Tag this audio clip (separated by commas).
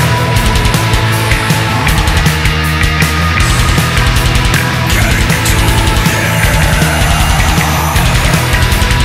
Electronic music, Music